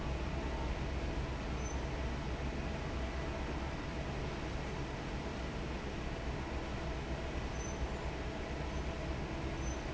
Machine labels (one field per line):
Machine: fan